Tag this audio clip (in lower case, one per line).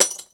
shatter
glass